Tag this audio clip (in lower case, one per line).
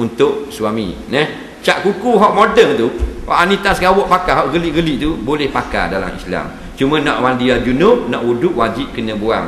speech